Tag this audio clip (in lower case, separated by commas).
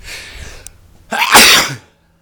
sneeze, respiratory sounds